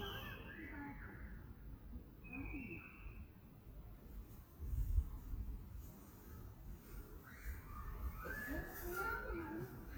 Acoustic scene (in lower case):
residential area